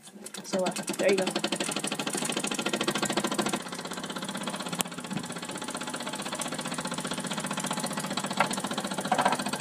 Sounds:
engine, speech

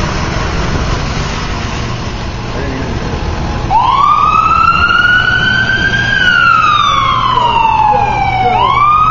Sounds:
ambulance (siren), emergency vehicle, vehicle, truck, ambulance siren, motor vehicle (road)

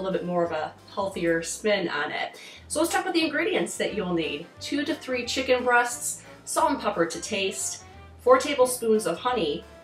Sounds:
speech, music

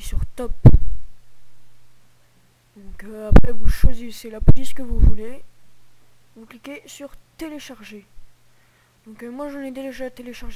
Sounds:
speech

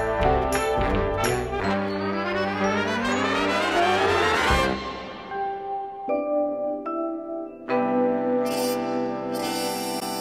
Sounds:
music

